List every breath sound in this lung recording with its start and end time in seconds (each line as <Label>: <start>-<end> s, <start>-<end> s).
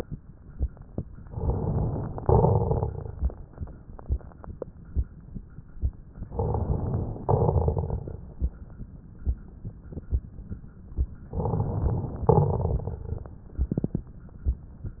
Inhalation: 1.25-2.17 s, 6.22-7.23 s, 11.33-12.28 s
Exhalation: 2.17-3.17 s, 7.27-8.27 s, 12.33-13.28 s
Crackles: 2.17-3.17 s, 6.22-7.23 s, 7.27-8.27 s, 11.33-12.28 s, 12.33-13.28 s